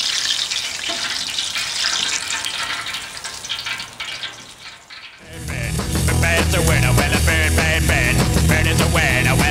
Food frying in oil, music plays